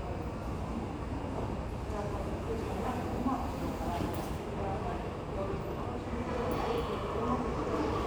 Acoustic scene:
subway station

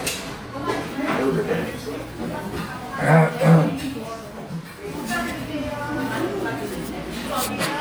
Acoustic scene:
crowded indoor space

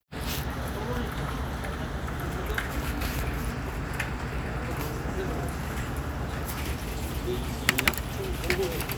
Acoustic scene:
crowded indoor space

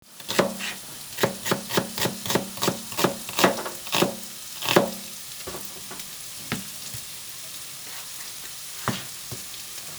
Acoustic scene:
kitchen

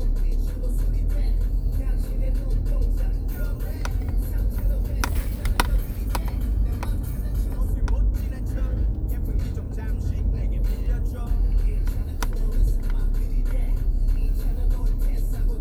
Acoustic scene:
car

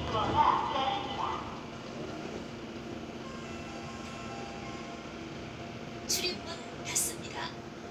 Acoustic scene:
subway train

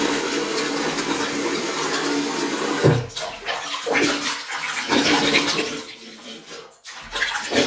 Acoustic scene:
restroom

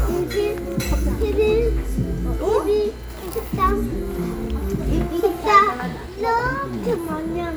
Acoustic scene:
restaurant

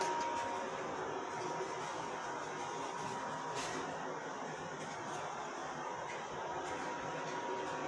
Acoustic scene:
subway station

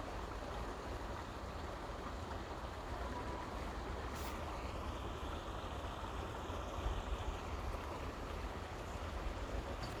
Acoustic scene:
park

